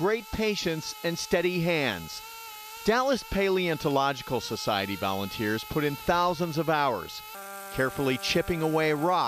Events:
[0.00, 2.19] man speaking
[0.00, 9.25] mechanisms
[0.00, 9.25] whir
[2.83, 3.23] man speaking
[3.31, 7.18] man speaking
[7.77, 9.25] man speaking

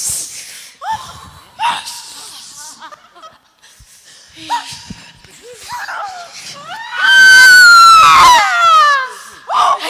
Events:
[0.00, 1.54] breathing
[0.00, 9.85] background noise
[0.81, 1.29] shout
[1.54, 1.82] shout
[1.82, 2.71] breathing
[2.48, 3.35] laughter
[3.57, 4.32] breathing
[4.35, 4.97] shout
[5.41, 6.27] shout
[6.52, 9.16] shout
[9.02, 9.43] breathing
[9.45, 9.85] shout

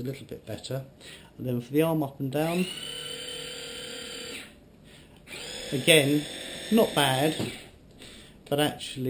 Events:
[0.00, 0.86] man speaking
[0.00, 9.05] conversation
[0.00, 9.05] mechanisms
[0.97, 1.31] breathing
[1.35, 2.70] man speaking
[2.29, 4.56] power tool
[4.80, 7.70] power tool
[5.12, 5.22] tick
[5.69, 6.23] man speaking
[6.68, 7.58] man speaking
[7.38, 7.58] generic impact sounds
[7.87, 8.38] power tool
[8.45, 9.05] man speaking

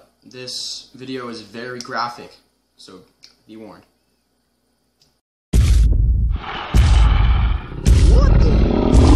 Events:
[0.00, 5.18] noise
[3.40, 3.91] male speech
[3.94, 4.24] whistling
[4.95, 5.17] generic impact sounds
[5.50, 9.15] television
[7.83, 9.15] animal
[7.97, 8.57] speech

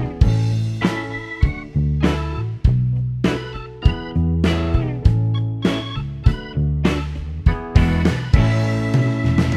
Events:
[0.00, 9.55] power tool

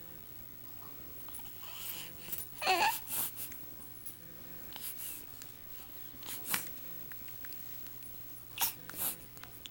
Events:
[0.00, 0.24] brief tone
[0.00, 9.70] mechanisms
[0.60, 0.92] generic impact sounds
[1.22, 1.45] generic impact sounds
[1.28, 1.57] human sounds
[1.51, 2.06] baby cry
[1.79, 2.43] brief tone
[2.14, 2.39] breathing
[2.23, 2.33] generic impact sounds
[2.55, 2.94] baby cry
[3.06, 3.50] breathing
[3.43, 3.62] generic impact sounds
[3.64, 4.39] human voice
[3.97, 4.15] generic impact sounds
[4.08, 4.76] brief tone
[4.65, 5.16] breathing
[4.66, 4.83] generic impact sounds
[5.25, 5.46] generic impact sounds
[5.72, 5.98] generic impact sounds
[6.08, 7.03] human voice
[6.18, 6.64] breathing
[6.22, 6.70] generic impact sounds
[6.33, 7.09] brief tone
[7.07, 7.54] generic impact sounds
[7.76, 8.11] generic impact sounds
[8.52, 8.72] baby cry
[8.73, 9.23] brief tone
[8.82, 8.98] generic impact sounds
[8.90, 9.14] breathing
[9.24, 9.70] human voice
[9.28, 9.47] generic impact sounds
[9.62, 9.70] generic impact sounds

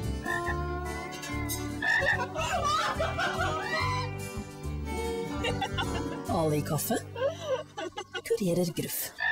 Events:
[0.00, 7.96] music
[0.20, 0.51] croak
[0.77, 1.69] dishes, pots and pans
[1.80, 2.20] croak
[1.94, 4.08] laughter
[2.57, 2.95] shout
[3.61, 4.04] shout
[5.24, 6.23] laughter
[6.24, 7.03] woman speaking
[7.19, 7.53] breathing
[7.58, 8.36] laughter
[8.24, 9.10] woman speaking

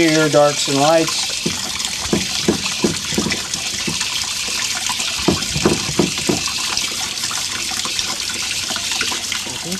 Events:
[0.00, 1.27] man speaking
[0.00, 9.75] dribble
[1.41, 1.70] generic impact sounds
[2.08, 2.26] generic impact sounds
[2.46, 2.53] generic impact sounds
[2.78, 2.89] generic impact sounds
[3.12, 3.35] generic impact sounds
[3.83, 3.94] generic impact sounds
[5.24, 5.33] generic impact sounds
[5.55, 5.72] generic impact sounds
[5.98, 6.07] generic impact sounds
[6.23, 6.37] generic impact sounds
[9.43, 9.75] man speaking

